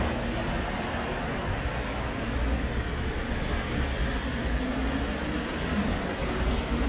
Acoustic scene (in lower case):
elevator